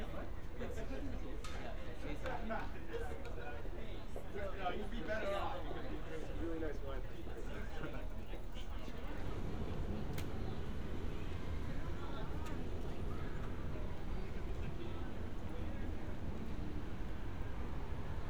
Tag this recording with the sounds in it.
person or small group talking